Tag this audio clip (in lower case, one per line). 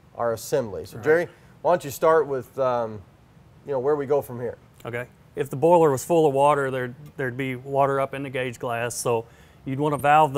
speech